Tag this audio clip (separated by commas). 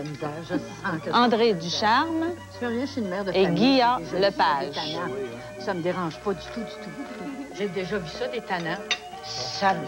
Music, Speech